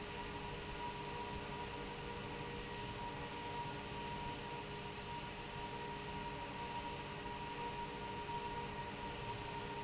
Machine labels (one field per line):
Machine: fan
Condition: abnormal